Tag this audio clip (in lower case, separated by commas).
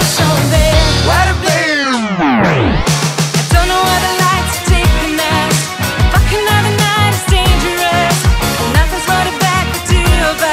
music, pop music